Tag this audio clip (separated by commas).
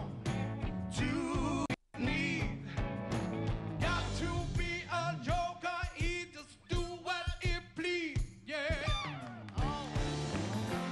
Male singing, Music